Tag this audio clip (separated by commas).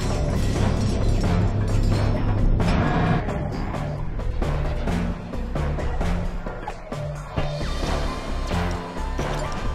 Music